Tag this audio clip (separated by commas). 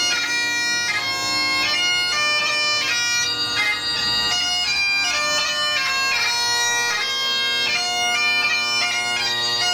Music, playing bagpipes, Bagpipes